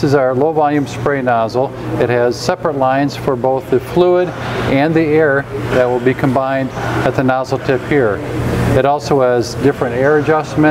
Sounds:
Speech

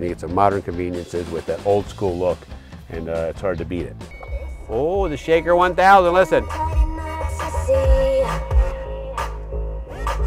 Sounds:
Music, Speech

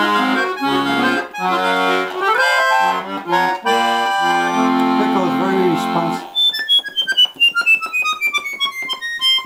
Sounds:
Music, Accordion, Speech

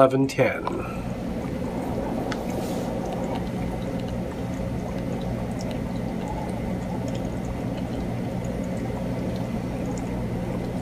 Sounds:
Speech

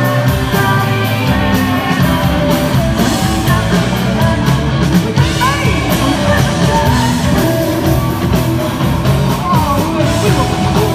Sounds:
Singing, Rock and roll, Music

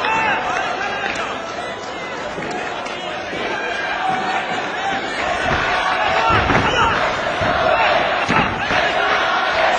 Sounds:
Speech

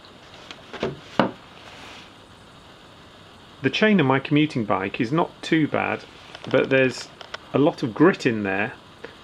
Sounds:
Speech

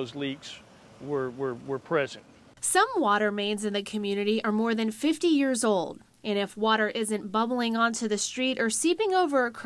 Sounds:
Speech

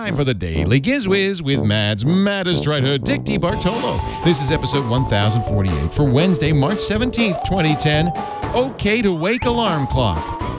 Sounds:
Music, Speech

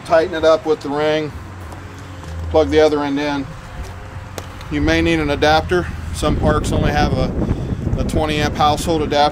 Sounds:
Speech

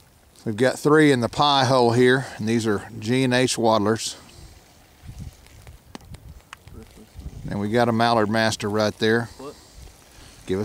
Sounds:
Speech

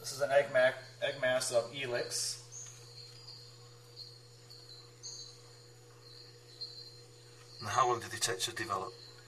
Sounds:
Speech

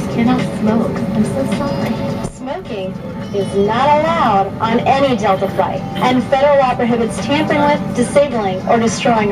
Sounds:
Speech, Music

